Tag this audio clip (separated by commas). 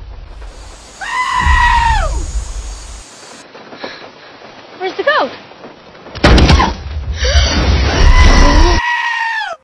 Speech, Bleat